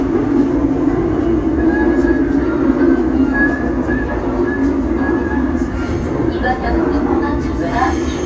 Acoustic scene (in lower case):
subway train